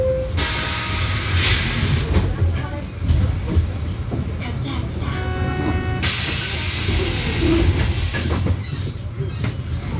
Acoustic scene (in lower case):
bus